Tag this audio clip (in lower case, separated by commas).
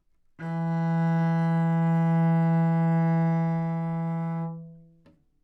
music, musical instrument, bowed string instrument